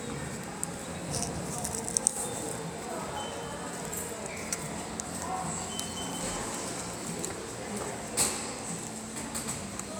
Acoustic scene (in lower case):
subway station